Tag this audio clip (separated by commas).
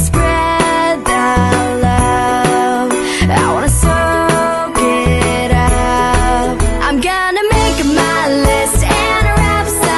Music, Soundtrack music